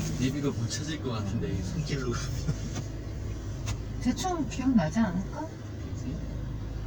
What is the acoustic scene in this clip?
car